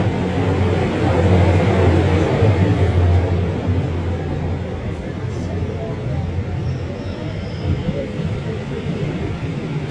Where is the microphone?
on a subway train